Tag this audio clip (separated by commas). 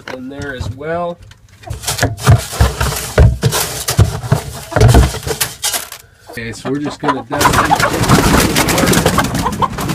outside, rural or natural, Speech, livestock, Bird, Chicken